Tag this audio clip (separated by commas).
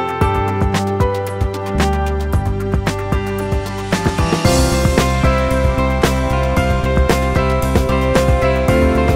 Music